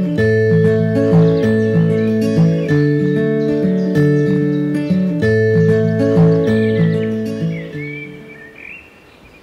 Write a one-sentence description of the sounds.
A guitar tune is played with birds chirping in the background